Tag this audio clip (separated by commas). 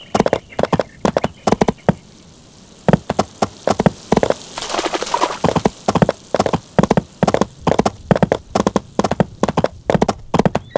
Clip-clop